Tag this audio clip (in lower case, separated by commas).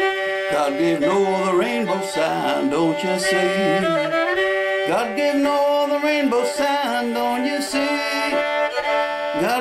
musical instrument, music, violin